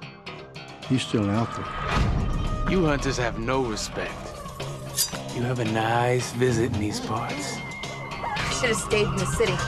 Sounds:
music, speech

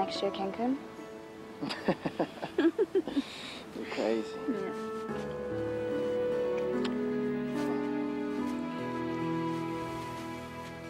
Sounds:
music, outside, rural or natural, speech

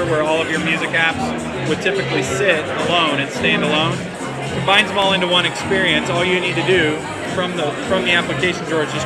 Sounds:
speech, music

